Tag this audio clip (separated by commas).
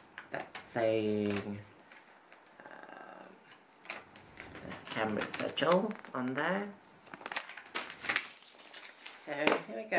Speech